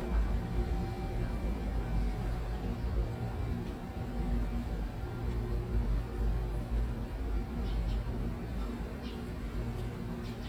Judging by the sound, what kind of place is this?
residential area